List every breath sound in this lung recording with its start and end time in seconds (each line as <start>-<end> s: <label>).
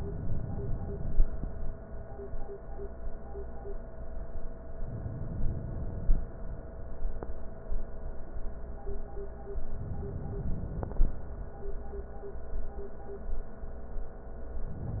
4.76-6.10 s: inhalation
6.19-6.64 s: exhalation
9.60-10.95 s: inhalation
10.95-11.41 s: exhalation